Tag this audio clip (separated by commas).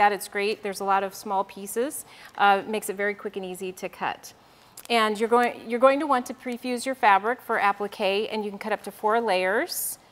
Speech